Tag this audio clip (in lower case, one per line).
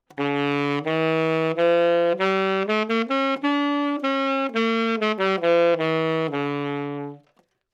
musical instrument
music
wind instrument